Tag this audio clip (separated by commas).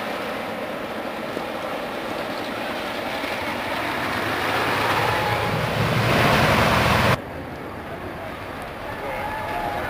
Speech